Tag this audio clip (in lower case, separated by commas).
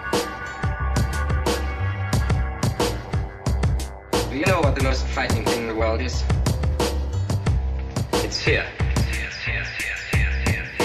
music, speech